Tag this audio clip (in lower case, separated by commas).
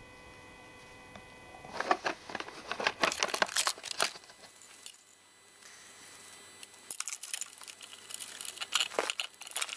tools